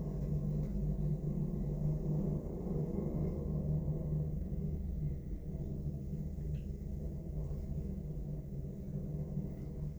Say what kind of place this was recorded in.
elevator